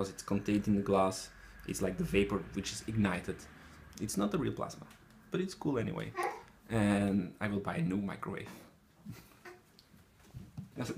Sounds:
Speech

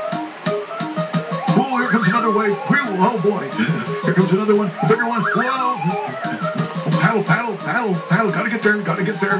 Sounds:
Music, Speech

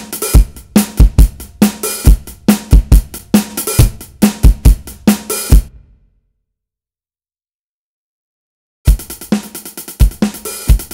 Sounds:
playing drum kit, Drum, Musical instrument, Drum kit, Bass drum, Music

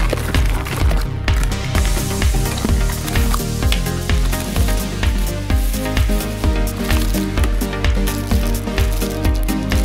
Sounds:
Music, Crackle

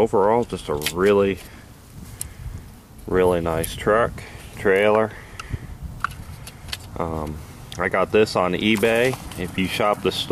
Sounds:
Speech

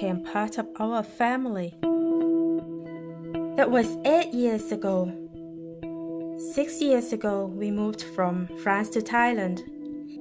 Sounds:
Speech, Music

